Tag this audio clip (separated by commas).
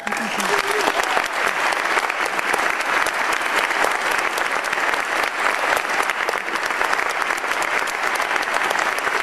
people clapping, Crowd, Speech, Applause